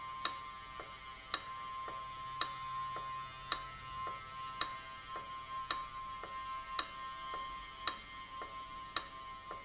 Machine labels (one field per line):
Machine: valve